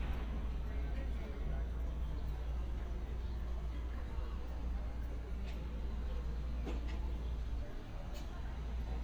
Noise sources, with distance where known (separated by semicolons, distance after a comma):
person or small group talking